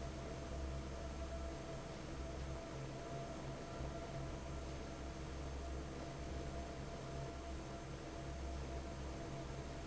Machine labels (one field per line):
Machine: fan